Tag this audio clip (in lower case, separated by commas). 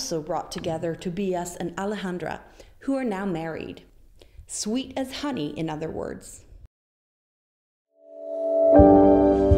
speech, music